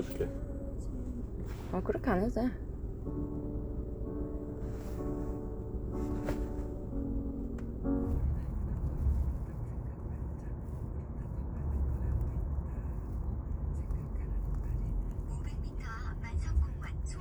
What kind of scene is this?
car